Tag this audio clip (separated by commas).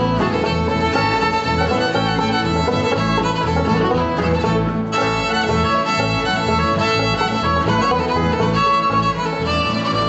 Musical instrument, fiddle, Music